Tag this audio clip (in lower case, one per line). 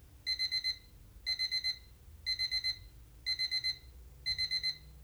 alarm